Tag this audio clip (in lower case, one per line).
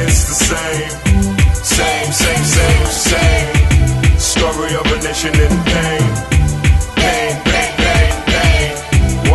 hip hop music
rapping
music